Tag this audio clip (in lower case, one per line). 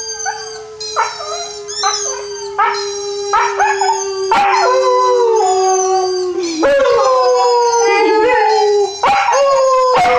dog howling